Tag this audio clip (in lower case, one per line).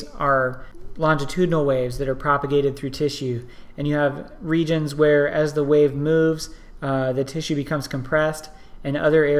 speech